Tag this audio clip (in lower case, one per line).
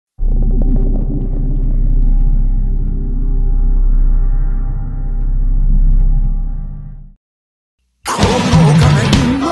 rock music
drum
drum kit
percussion
musical instrument
bass drum
cymbal
hi-hat
music